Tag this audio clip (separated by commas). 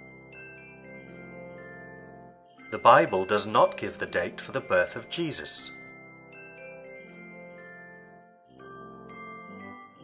Speech, Music